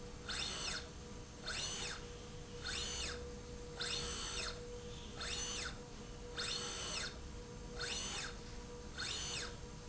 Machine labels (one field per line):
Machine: slide rail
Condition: normal